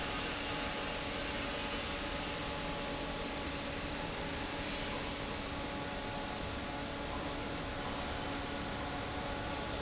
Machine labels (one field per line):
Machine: fan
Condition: normal